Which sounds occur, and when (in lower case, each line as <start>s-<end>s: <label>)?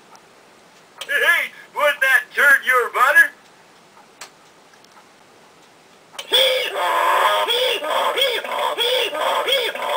0.0s-9.9s: mechanisms
0.1s-0.2s: tick
1.0s-1.1s: tick
1.0s-1.5s: laughter
1.5s-1.7s: breathing
1.7s-3.3s: male speech
3.4s-3.5s: tick
3.7s-3.8s: tick
4.2s-4.3s: tick
4.5s-4.5s: tick
4.7s-5.0s: tick
5.6s-5.7s: tick
6.2s-6.3s: tick
6.3s-9.9s: human voice